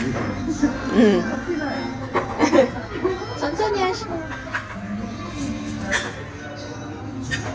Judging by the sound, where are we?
in a restaurant